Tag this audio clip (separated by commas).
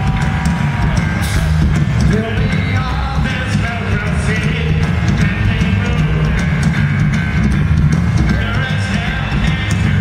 Music, Male singing